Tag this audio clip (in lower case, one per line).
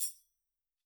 percussion
musical instrument
music
tambourine